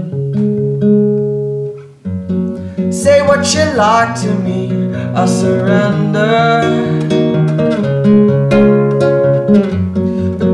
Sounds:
music

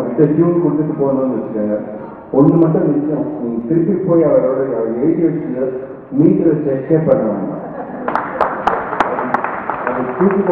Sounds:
speech

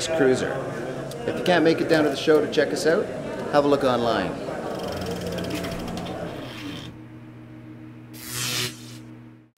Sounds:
speech

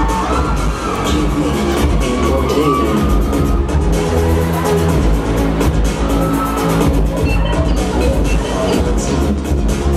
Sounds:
music

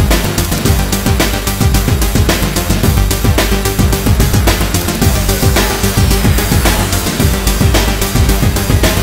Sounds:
music

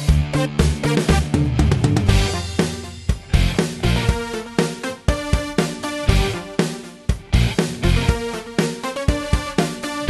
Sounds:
music

